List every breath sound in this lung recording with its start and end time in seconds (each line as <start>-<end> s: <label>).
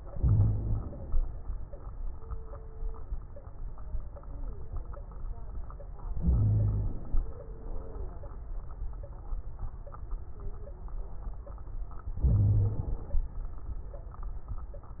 0.09-0.79 s: wheeze
0.09-1.18 s: inhalation
6.22-6.93 s: wheeze
6.22-7.14 s: inhalation
12.16-13.23 s: inhalation
12.20-12.84 s: wheeze